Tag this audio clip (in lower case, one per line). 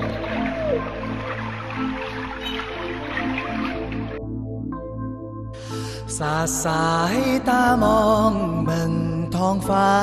new-age music
music